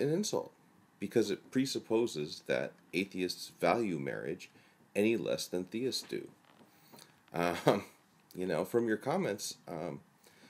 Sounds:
speech, male speech

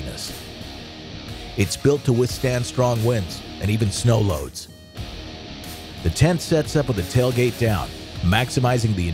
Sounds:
music, speech

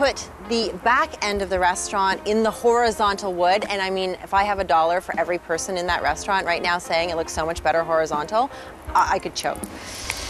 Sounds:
speech, music

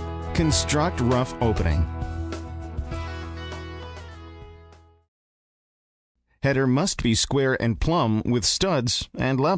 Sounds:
speech, music

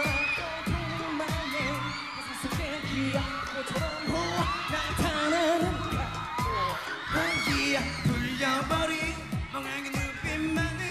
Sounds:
dance music, music

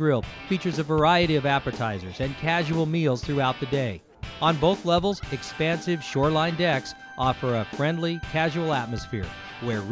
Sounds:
music, speech

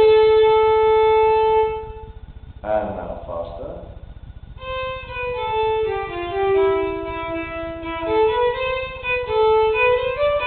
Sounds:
violin, music, speech, musical instrument

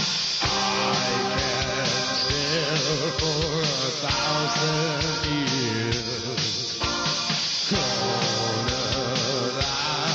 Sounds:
music

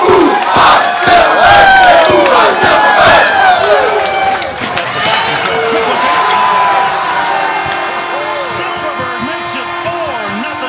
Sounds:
speech

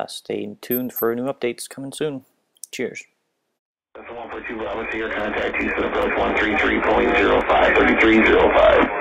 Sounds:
radio, speech

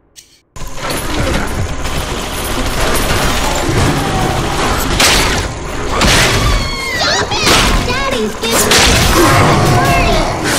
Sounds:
speech

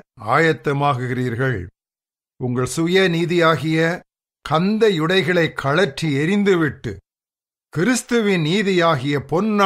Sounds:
speech, speech synthesizer

